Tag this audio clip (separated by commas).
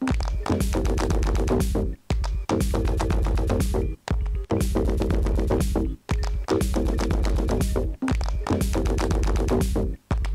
Percussion, Music